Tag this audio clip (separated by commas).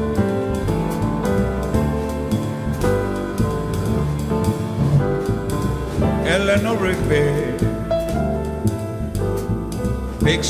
Music